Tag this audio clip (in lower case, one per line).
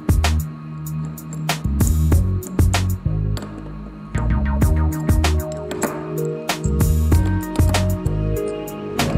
tools
music